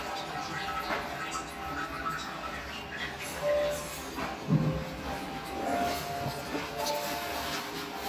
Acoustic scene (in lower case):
restroom